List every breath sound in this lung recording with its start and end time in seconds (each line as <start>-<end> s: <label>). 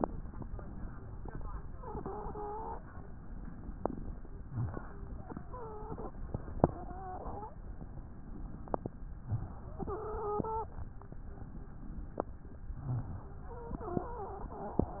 1.73-2.81 s: wheeze
4.40-4.77 s: rhonchi
4.40-5.02 s: inhalation
5.45-6.15 s: wheeze
6.60-7.57 s: wheeze
9.20-9.57 s: rhonchi
9.20-9.74 s: inhalation
9.73-10.76 s: wheeze
12.75-13.16 s: rhonchi
12.75-13.29 s: inhalation
13.47-15.00 s: wheeze